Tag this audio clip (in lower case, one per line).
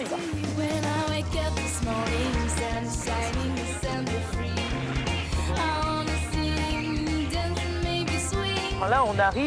music
speech